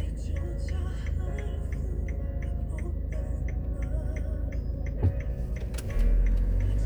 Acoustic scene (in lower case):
car